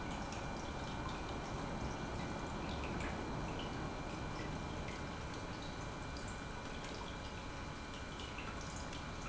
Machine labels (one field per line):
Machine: pump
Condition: normal